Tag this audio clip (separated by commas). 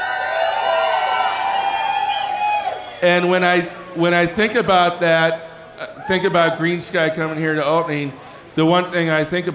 Speech